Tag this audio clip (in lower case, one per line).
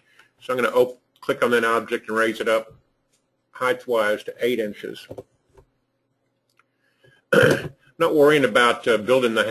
inside a small room
speech